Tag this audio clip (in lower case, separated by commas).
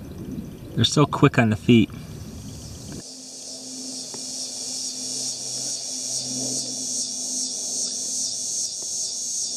etc. buzzing